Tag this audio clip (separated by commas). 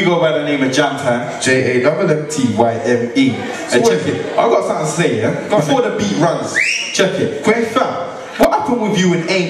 Speech